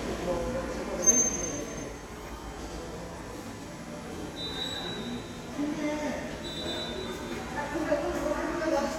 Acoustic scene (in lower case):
subway station